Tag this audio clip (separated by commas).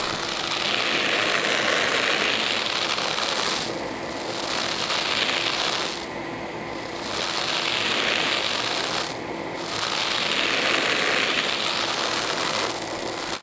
home sounds